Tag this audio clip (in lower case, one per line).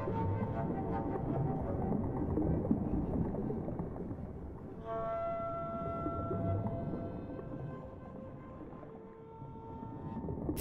music